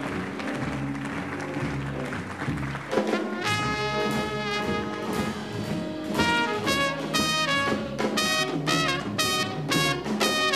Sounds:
music

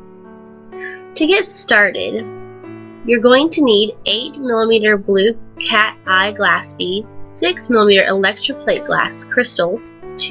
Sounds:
music
speech

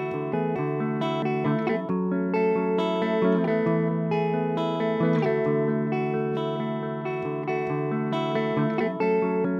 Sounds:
music

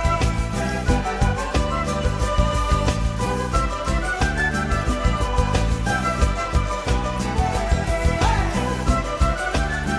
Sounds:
music

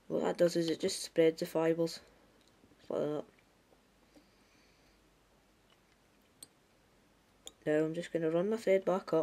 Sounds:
speech

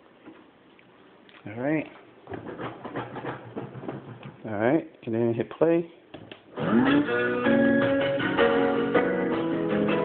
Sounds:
speech
music
electronic music

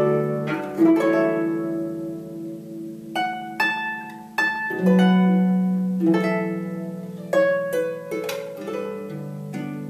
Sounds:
harp
pizzicato

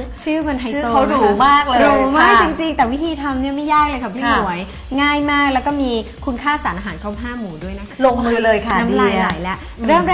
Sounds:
speech
music

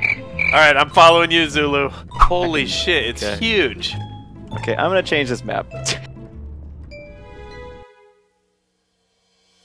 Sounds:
music
speech

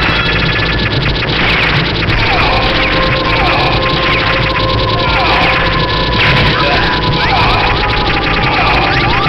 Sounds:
speech

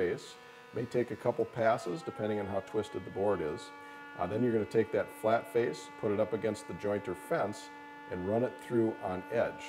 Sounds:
planing timber

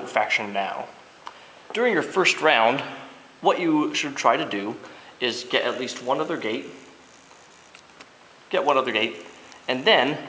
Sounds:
speech

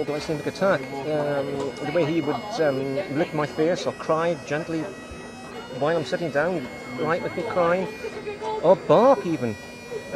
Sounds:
music
speech

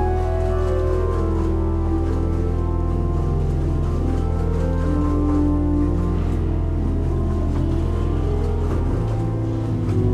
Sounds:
music
musical instrument
keyboard (musical)
piano

